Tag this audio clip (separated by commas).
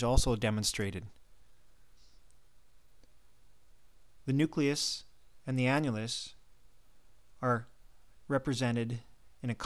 Speech